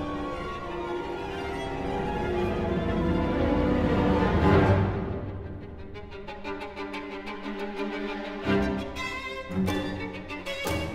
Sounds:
fiddle
musical instrument
music

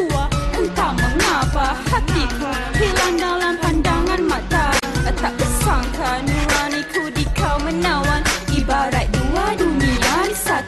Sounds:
music

